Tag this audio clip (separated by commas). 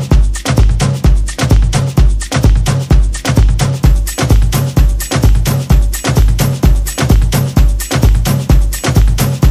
Music